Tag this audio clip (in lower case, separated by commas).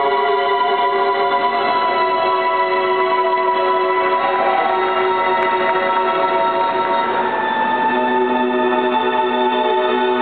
music